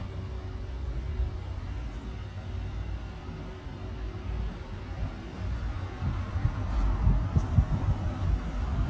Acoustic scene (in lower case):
residential area